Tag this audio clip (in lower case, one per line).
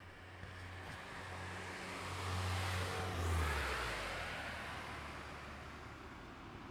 car
car passing by
motor vehicle (road)
vehicle
engine